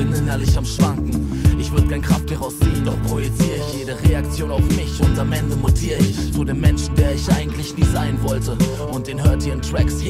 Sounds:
music

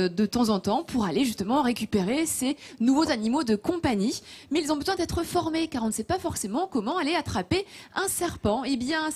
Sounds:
speech

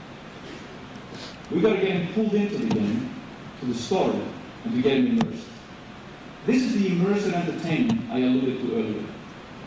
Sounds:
speech
man speaking
narration

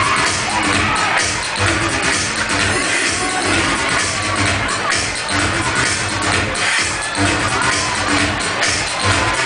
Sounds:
music
speech

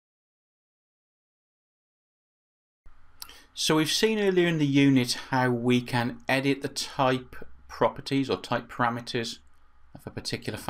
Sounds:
speech

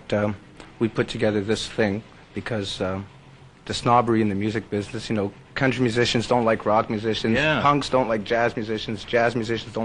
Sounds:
speech
inside a small room

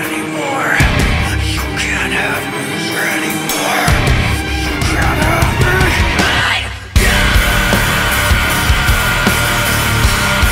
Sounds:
music

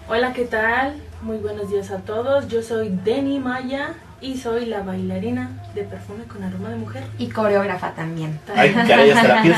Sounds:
radio
speech

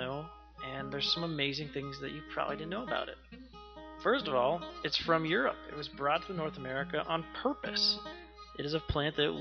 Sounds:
speech
music

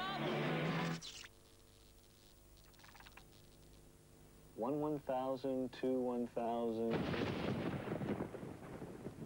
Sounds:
artillery fire

